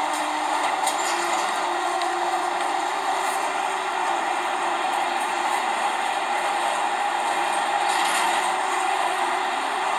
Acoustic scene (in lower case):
subway train